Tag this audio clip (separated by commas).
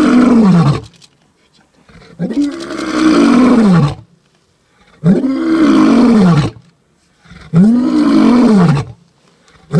lions roaring